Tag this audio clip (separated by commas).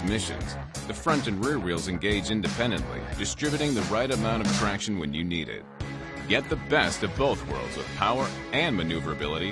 Speech, Music